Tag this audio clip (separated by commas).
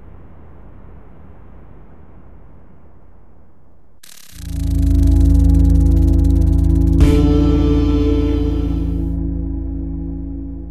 Ambient music, Music